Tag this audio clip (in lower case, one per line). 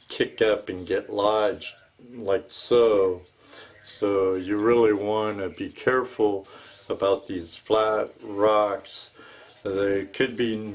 speech